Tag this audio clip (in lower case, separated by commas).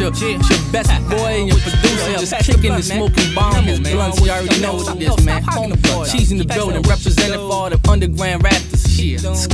exciting music, music, rhythm and blues